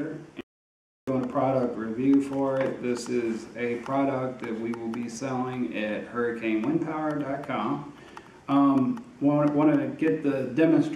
A male voice and chalk on chalkboard noise